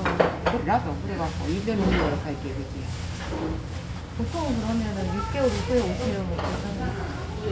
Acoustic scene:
restaurant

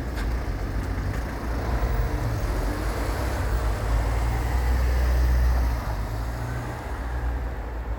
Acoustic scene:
street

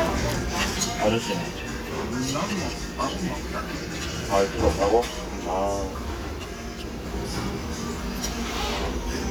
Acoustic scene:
restaurant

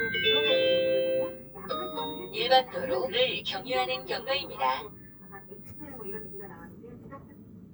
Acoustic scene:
car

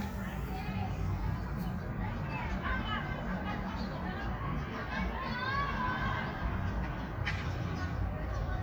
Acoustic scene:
park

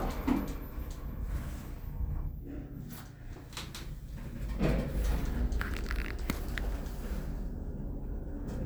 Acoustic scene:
elevator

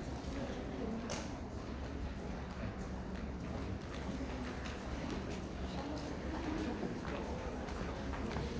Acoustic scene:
crowded indoor space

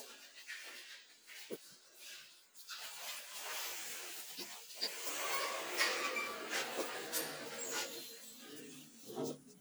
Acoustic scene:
elevator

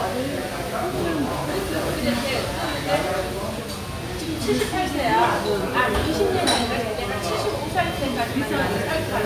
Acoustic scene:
restaurant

